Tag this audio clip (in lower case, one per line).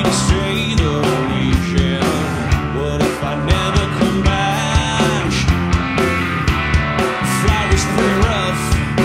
music